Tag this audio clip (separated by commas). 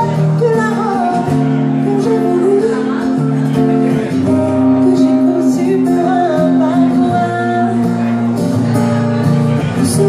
Music, Speech